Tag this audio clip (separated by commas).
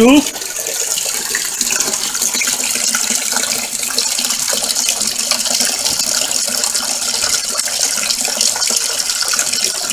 Liquid, Gush